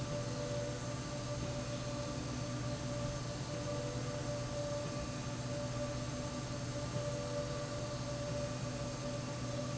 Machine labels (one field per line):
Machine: slide rail